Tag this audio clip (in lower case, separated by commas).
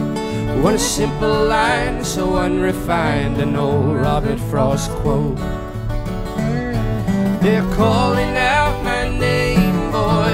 music